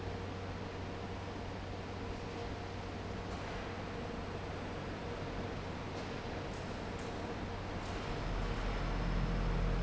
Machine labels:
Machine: fan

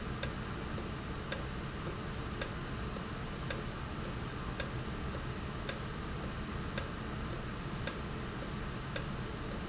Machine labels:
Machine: valve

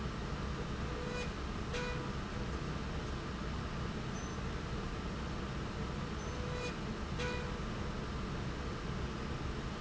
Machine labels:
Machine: slide rail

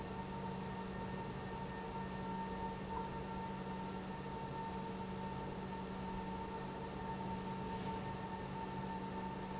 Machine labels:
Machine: pump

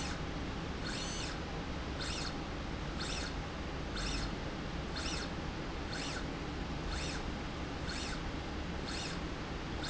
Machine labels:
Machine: slide rail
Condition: normal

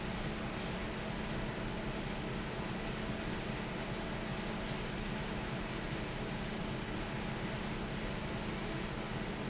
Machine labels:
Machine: fan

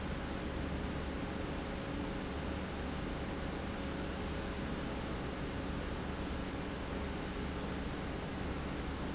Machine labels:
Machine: pump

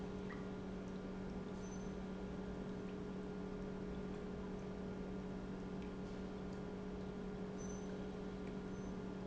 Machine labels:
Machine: pump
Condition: normal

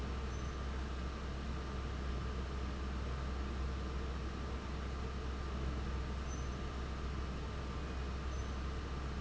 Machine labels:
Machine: fan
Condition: abnormal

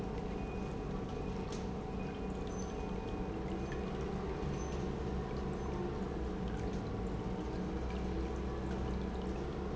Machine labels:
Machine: pump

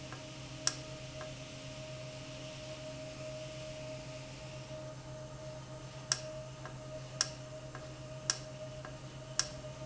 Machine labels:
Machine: valve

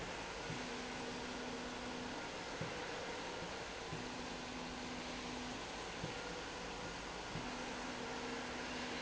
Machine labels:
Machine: slide rail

